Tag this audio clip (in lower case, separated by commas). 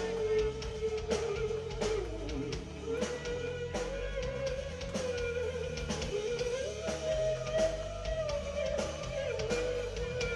music, guitar, musical instrument